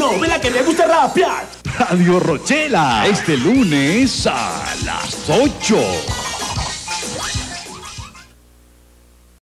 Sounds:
music, speech

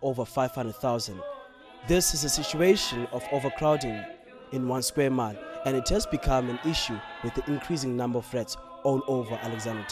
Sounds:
speech

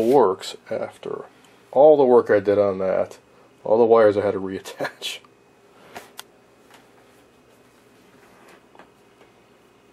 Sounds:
speech

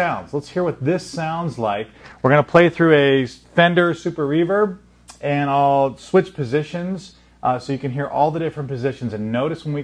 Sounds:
speech

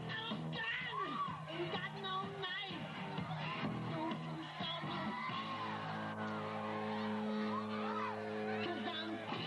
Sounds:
music

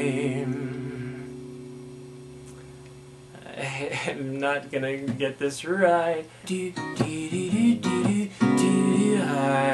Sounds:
male singing, speech, music

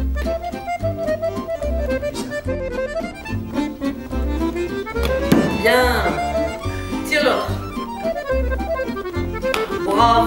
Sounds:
speech, music

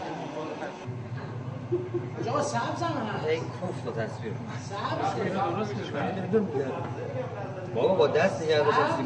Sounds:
speech

